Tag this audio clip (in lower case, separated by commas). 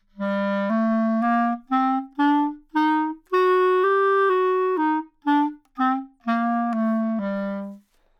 music, woodwind instrument, musical instrument